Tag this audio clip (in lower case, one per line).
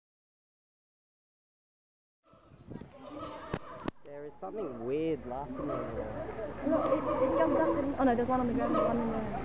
gibbon howling